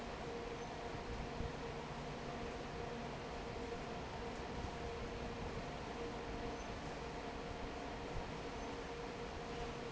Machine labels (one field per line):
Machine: fan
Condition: normal